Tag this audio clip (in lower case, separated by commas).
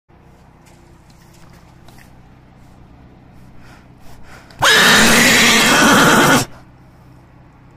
whinny